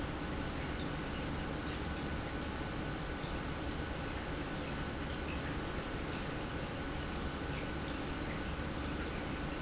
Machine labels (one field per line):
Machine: pump